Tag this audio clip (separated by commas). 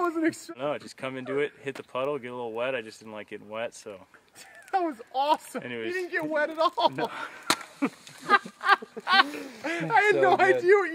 outside, rural or natural, Speech